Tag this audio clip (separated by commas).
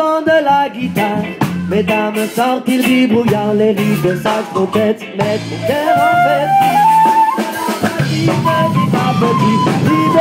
Jazz, Funk, Music